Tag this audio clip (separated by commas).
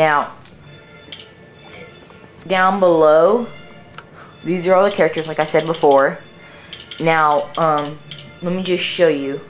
Speech, Music